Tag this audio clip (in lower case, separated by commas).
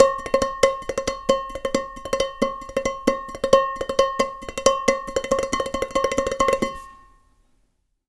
dishes, pots and pans, domestic sounds